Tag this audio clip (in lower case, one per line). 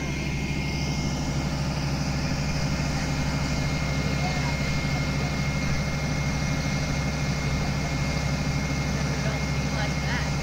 truck
heavy engine (low frequency)
vehicle
speech
engine